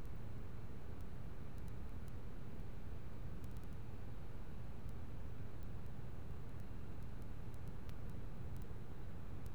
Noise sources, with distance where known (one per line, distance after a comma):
background noise